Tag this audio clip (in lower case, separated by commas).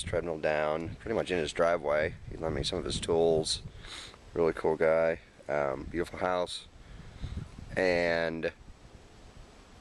speech